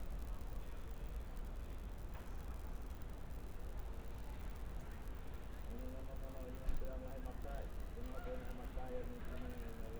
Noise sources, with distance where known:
person or small group talking

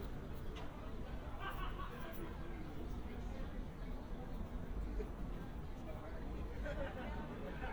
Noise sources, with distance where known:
person or small group talking, far

